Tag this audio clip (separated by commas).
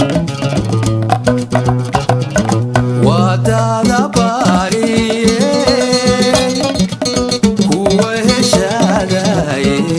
Singing, Music